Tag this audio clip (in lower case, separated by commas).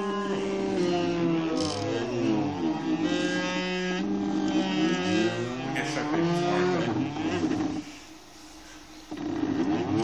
speech